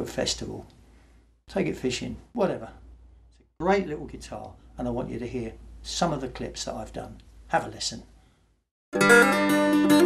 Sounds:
plucked string instrument
acoustic guitar
musical instrument
speech
strum
music
guitar

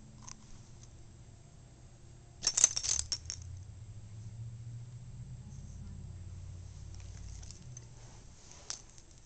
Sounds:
keys jangling

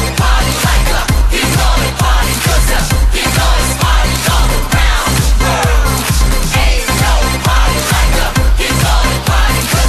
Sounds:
music

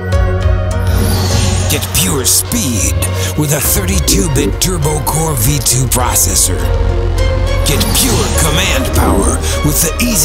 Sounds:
speech
music

